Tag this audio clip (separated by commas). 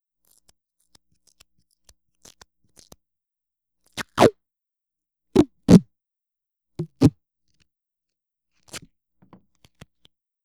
Domestic sounds, duct tape